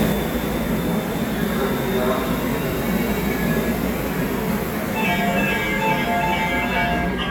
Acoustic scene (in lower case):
subway station